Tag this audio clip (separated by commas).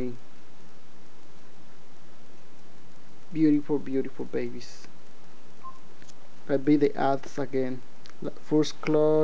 Speech, inside a small room